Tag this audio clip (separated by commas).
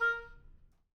woodwind instrument, Musical instrument, Music